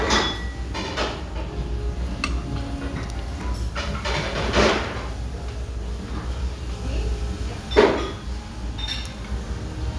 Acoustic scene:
restaurant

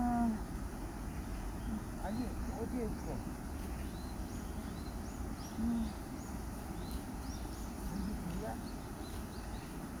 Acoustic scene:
park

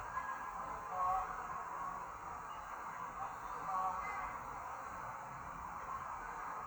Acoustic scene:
park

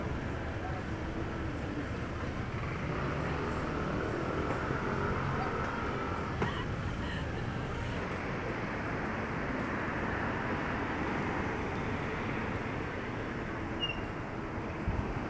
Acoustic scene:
street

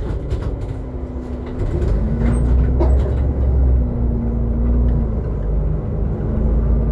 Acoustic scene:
bus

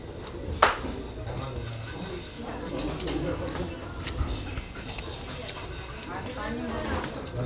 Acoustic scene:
restaurant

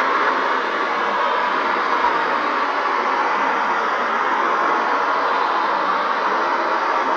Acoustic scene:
street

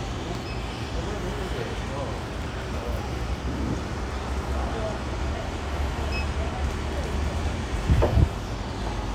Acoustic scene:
residential area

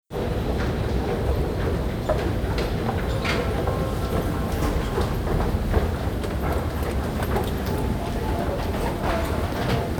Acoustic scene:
subway station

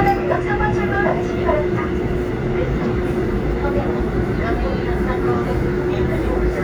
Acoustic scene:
subway train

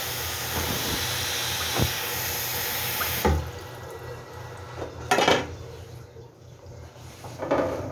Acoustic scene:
restroom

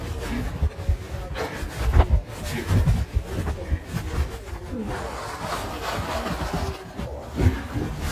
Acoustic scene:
elevator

